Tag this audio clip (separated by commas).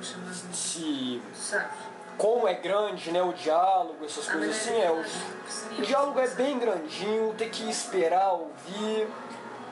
Speech